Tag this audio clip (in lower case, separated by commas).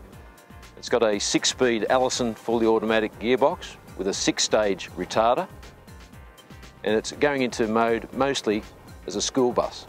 speech, music